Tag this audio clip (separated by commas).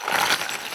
Tools